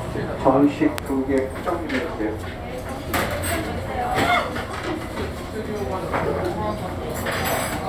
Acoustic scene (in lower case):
restaurant